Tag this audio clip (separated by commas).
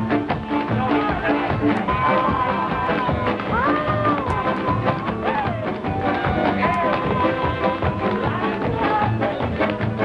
Music